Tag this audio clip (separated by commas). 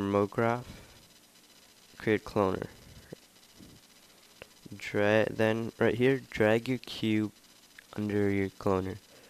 Speech